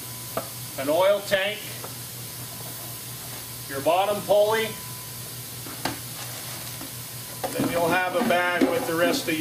Steam is hissing and a man is talking and clanking items together